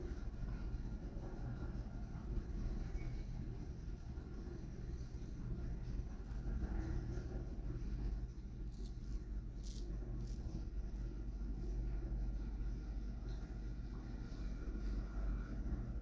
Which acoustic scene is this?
elevator